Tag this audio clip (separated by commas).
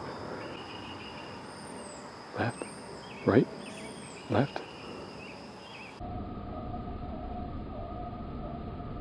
outside, rural or natural, Bird vocalization, Bird, Speech